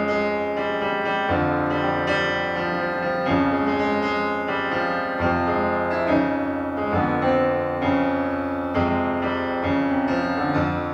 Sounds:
music

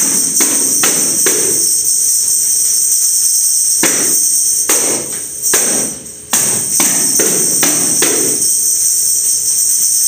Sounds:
playing tambourine

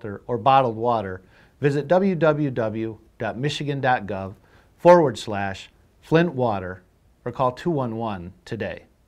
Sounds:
speech

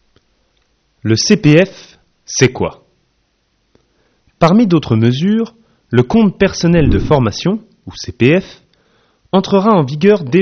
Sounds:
speech

